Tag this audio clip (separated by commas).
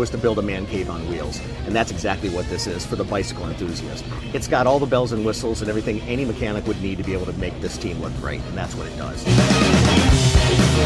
Speech, Music